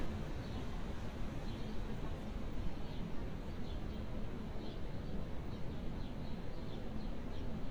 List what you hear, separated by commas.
background noise